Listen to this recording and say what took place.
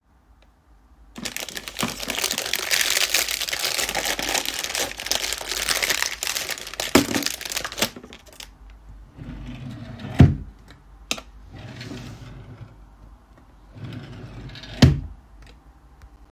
I took a pen out of a wrapper, put the wrapper in a drawer, and closed it.